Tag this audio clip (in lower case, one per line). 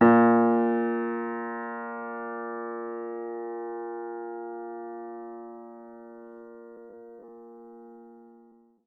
piano
keyboard (musical)
musical instrument
music